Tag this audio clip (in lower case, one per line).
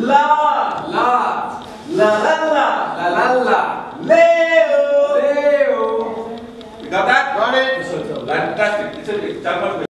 speech
singing